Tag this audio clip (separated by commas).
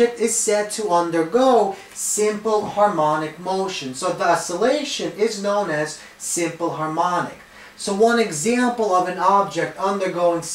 Speech